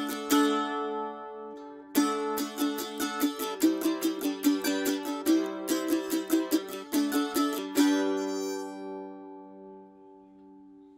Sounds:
Music, Mandolin

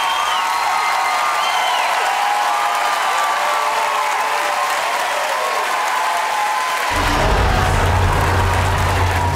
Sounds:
singing choir

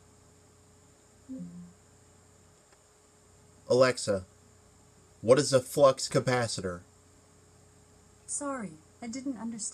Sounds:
Speech

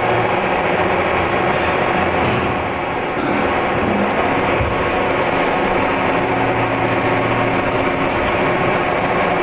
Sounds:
lathe spinning

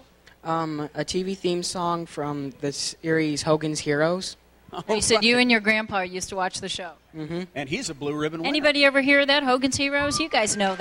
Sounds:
Speech

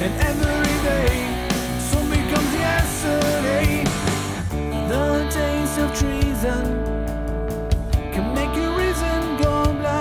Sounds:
Music

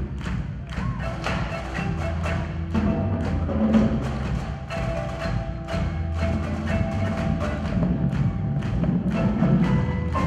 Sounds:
Percussion, Music

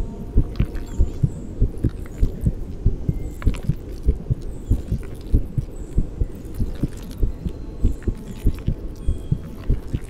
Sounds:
heartbeat

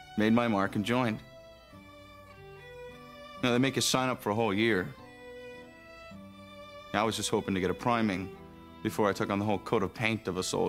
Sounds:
fiddle

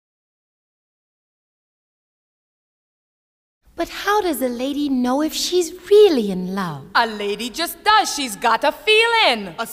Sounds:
Conversation

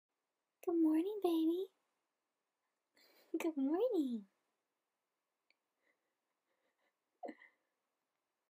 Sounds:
Speech

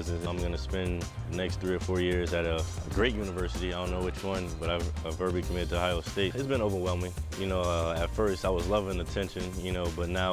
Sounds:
Music, Speech

